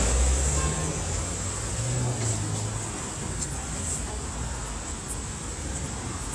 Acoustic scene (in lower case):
street